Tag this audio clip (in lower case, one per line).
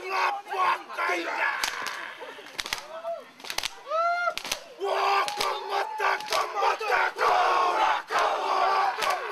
speech